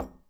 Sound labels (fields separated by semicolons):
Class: object falling; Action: being thrown; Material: ceramic